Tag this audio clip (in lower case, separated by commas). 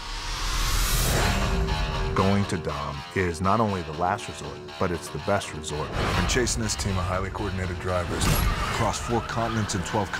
speech, music